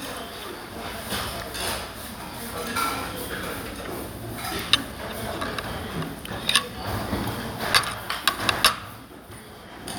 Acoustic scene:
restaurant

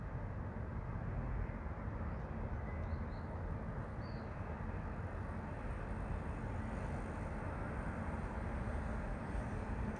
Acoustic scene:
residential area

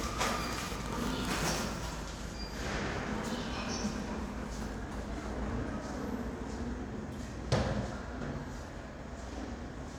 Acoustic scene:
elevator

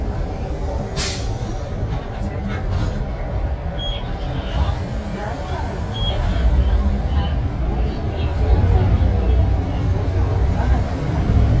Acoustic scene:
bus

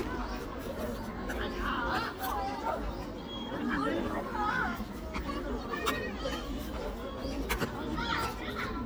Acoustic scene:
park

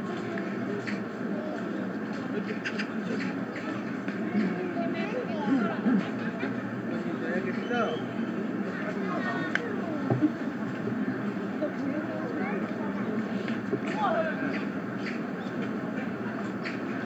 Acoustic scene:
residential area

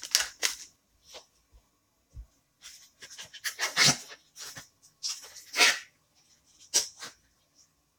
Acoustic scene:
kitchen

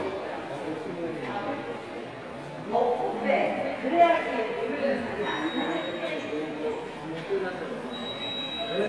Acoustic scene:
subway station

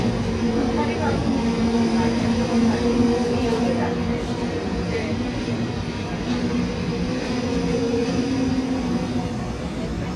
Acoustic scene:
subway train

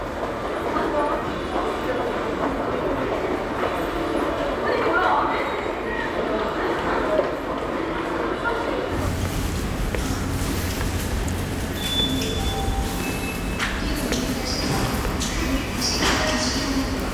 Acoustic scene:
subway station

